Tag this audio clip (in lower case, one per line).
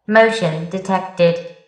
alarm
human voice